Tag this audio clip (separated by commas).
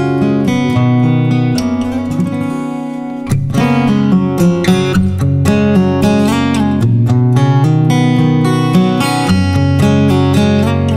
Plucked string instrument, Strum, Guitar, Music, Acoustic guitar, Musical instrument